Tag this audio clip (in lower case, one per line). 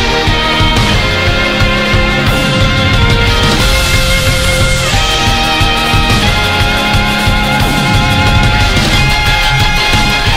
music